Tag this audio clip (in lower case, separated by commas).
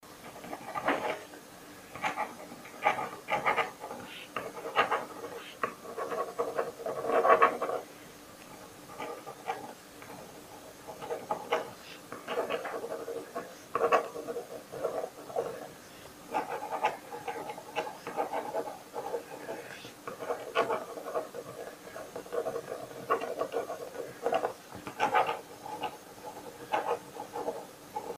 writing, domestic sounds